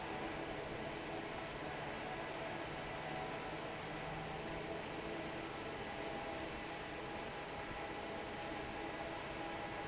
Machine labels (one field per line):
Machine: fan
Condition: normal